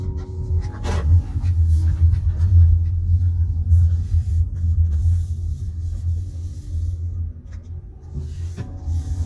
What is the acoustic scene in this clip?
car